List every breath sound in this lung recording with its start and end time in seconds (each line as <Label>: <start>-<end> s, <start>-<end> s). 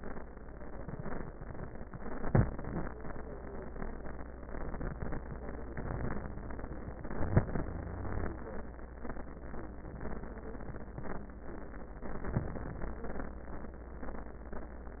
Wheeze: 7.67-8.35 s